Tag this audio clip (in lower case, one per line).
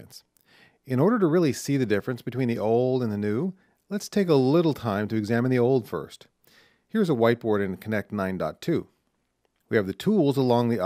speech